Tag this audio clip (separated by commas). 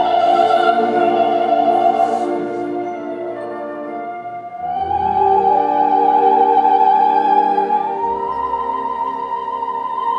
Singing, Classical music, Music, Opera